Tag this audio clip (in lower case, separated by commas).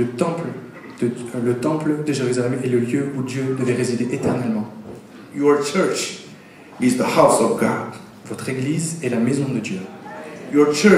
speech